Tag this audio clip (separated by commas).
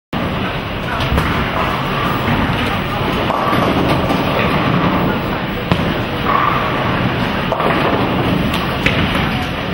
Speech